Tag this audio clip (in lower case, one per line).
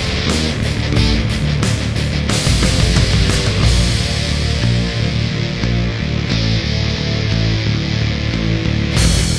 progressive rock
heavy metal
music